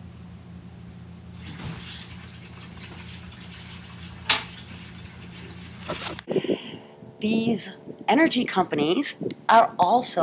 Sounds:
Speech, outside, rural or natural, inside a small room

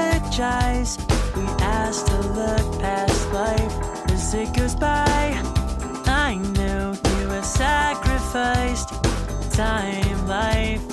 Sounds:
Music

